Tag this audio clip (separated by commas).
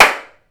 Clapping, Hands